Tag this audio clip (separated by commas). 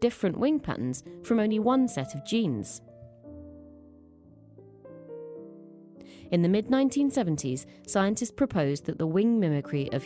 Speech, Music